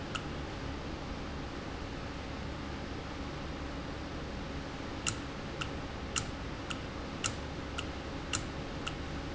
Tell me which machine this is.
valve